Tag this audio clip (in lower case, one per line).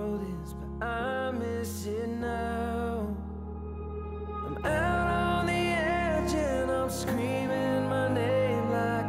music